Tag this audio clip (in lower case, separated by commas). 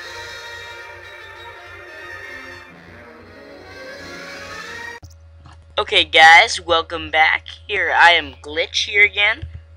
speech, music